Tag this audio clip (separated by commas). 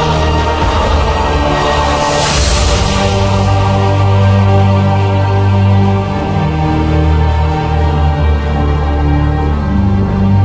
Music